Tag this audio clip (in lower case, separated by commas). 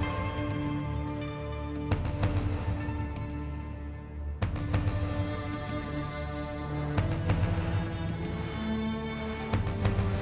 music